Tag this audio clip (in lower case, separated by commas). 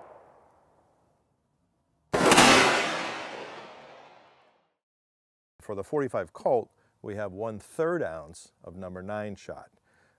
speech